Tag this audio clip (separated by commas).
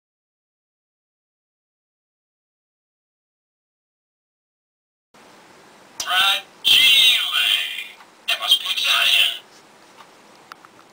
Speech